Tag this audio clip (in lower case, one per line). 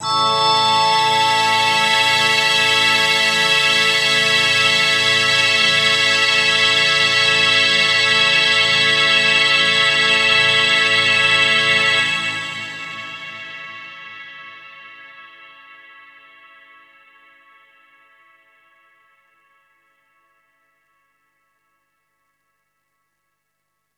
musical instrument
music